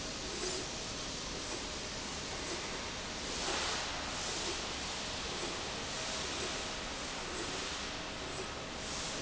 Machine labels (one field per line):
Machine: slide rail